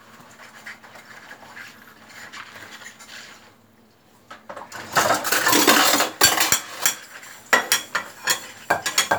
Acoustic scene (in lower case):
kitchen